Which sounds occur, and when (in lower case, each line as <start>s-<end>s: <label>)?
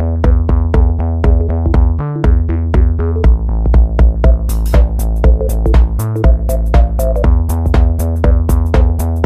0.0s-9.2s: music